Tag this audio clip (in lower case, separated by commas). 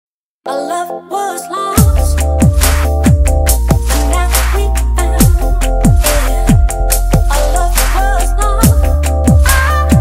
pop music, music